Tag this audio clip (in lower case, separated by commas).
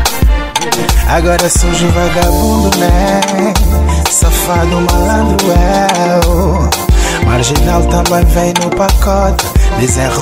dance music, music